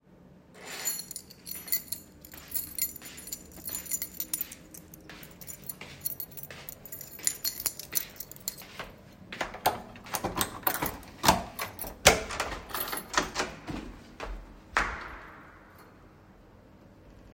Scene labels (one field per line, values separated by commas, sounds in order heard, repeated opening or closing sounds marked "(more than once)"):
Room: living room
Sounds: keys, footsteps, door